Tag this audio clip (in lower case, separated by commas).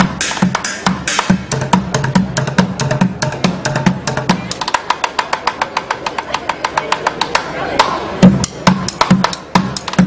music, speech